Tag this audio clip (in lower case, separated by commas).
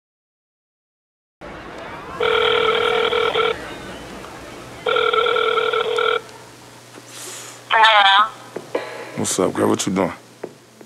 speech